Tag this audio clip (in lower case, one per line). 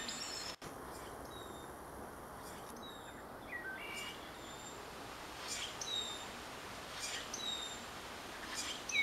wood thrush calling